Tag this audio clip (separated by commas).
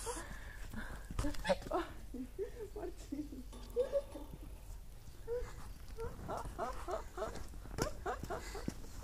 Bird, Goose, livestock